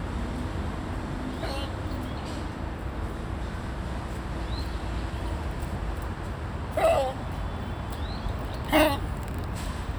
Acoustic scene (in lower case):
park